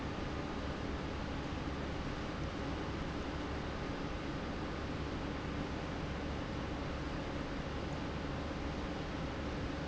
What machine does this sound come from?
pump